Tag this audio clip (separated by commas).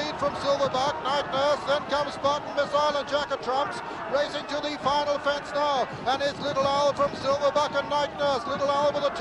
Animal, Speech